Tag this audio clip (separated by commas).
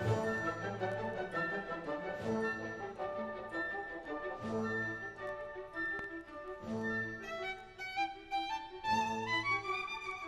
Music, Musical instrument, Violin